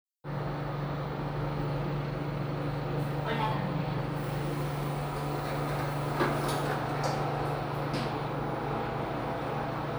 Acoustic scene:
elevator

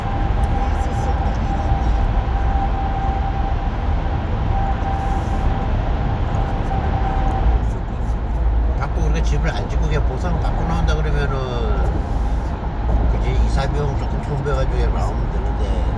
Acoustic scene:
car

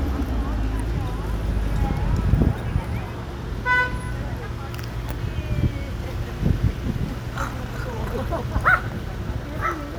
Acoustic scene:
residential area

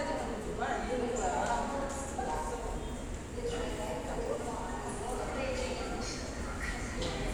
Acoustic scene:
subway station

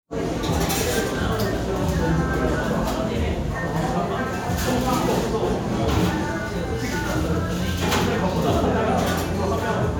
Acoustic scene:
restaurant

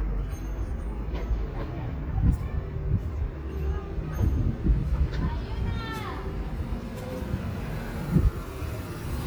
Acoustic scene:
residential area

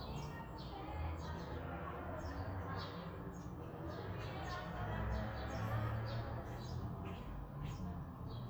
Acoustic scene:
residential area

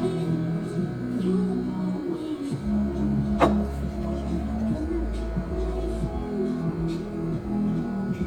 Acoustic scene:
restaurant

